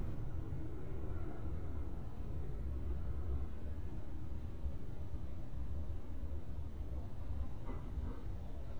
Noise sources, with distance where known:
background noise

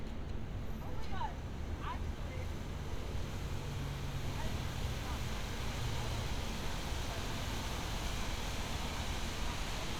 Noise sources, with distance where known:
medium-sounding engine, near; person or small group talking, near

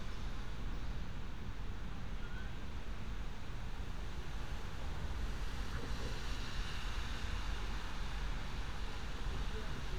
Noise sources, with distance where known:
background noise

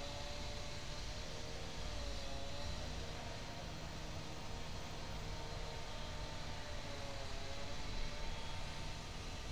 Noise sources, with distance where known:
small-sounding engine; unidentified powered saw

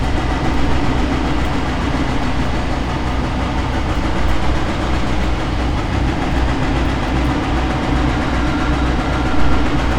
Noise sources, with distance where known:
engine of unclear size; unidentified impact machinery

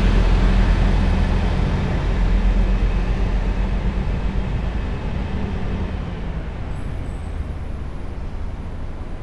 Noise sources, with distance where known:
large-sounding engine, near

